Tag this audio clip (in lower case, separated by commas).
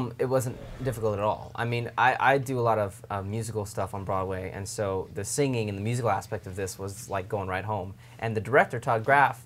speech